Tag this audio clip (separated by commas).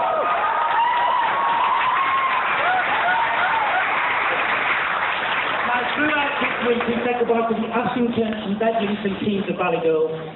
Speech, Male speech